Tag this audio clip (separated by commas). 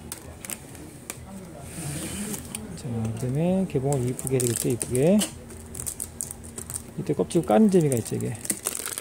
Speech